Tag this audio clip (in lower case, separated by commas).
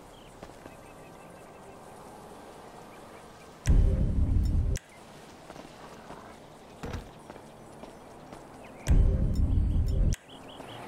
music